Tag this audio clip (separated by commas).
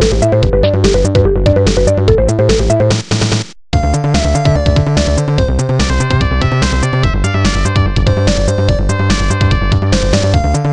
Video game music, Music